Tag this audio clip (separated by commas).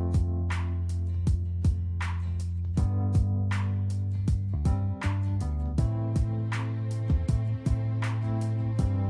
Music